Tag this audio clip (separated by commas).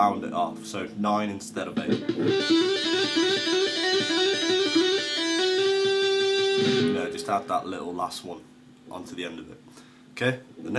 tapping guitar